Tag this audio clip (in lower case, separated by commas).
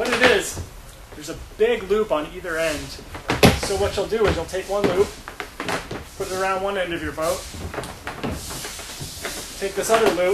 speech